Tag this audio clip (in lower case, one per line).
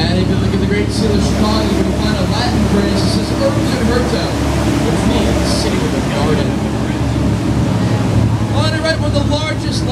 wind noise (microphone)
wind